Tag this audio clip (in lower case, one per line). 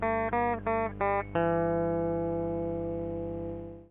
music
guitar
plucked string instrument
musical instrument